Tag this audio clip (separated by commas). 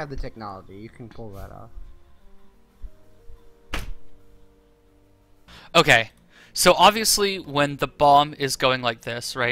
Speech